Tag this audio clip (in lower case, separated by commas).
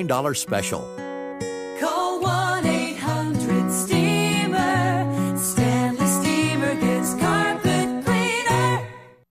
speech, music, happy music